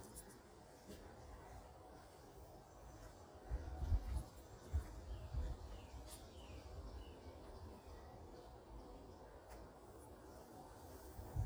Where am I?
in a park